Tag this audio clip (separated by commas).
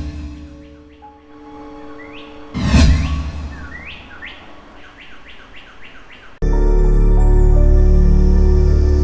Music